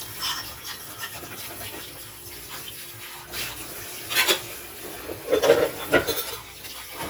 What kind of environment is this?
kitchen